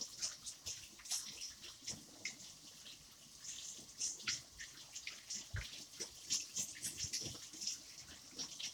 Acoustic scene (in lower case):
kitchen